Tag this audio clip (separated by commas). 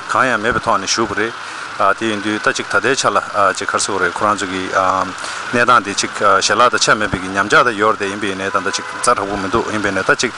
Speech